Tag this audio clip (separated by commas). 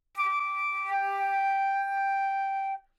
Music, Wind instrument, Musical instrument